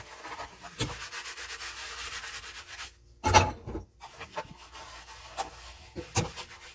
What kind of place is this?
kitchen